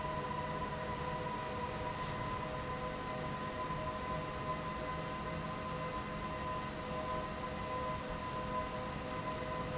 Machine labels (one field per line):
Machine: fan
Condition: abnormal